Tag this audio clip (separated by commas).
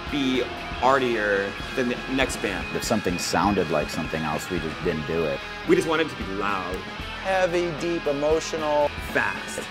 Music, Speech